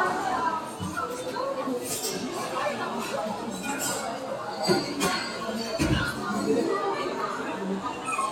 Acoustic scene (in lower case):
restaurant